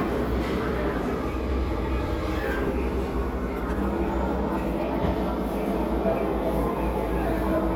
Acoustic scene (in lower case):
crowded indoor space